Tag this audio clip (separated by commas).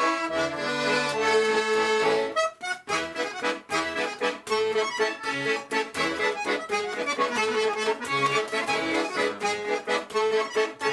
playing accordion